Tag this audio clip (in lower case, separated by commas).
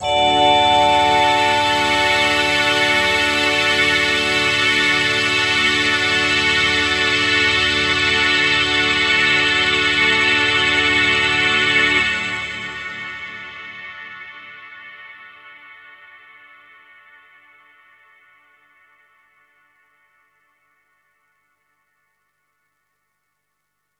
musical instrument, music